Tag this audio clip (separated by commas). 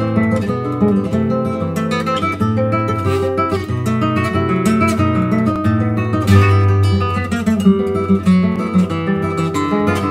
Guitar, Musical instrument, Strum, Music, Plucked string instrument